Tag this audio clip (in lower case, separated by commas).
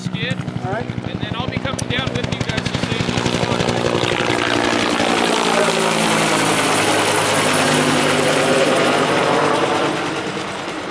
vehicle, speech, aircraft, helicopter